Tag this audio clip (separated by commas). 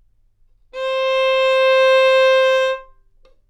Bowed string instrument, Music, Musical instrument